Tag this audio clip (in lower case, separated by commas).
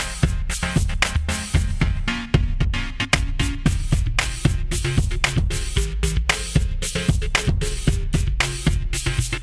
music